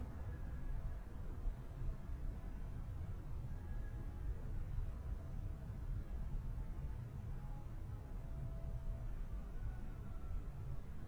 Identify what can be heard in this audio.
background noise